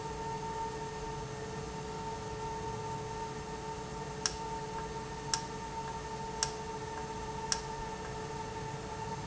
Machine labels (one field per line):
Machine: valve